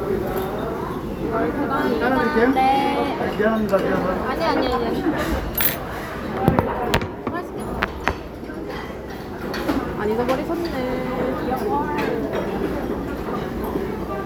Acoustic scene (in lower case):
crowded indoor space